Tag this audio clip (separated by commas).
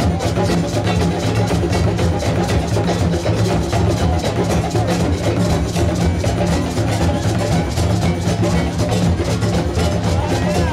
Musical instrument, Music, Drum, Bass drum